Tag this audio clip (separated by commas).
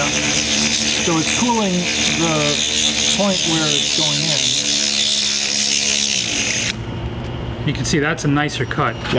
Drill, Speech